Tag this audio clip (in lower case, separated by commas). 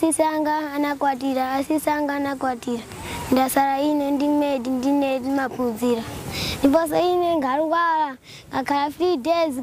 speech, kid speaking